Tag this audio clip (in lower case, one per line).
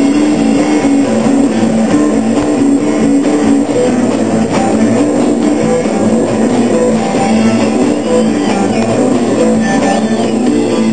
progressive rock
rock music
musical instrument
music
plucked string instrument
guitar